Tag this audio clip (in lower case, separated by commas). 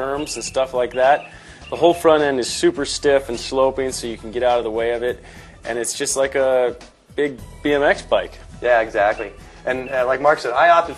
speech, music